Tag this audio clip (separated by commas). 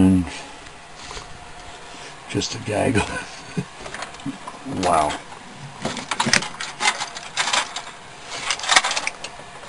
Speech, inside a small room